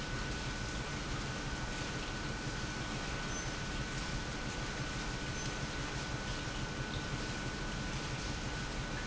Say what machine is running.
pump